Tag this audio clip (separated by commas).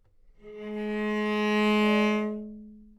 Musical instrument, Music, Bowed string instrument